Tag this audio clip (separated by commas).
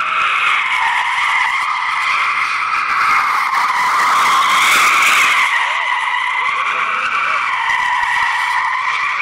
Car, Skidding, Vehicle